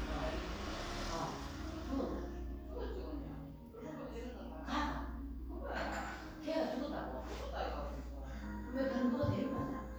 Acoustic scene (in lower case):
crowded indoor space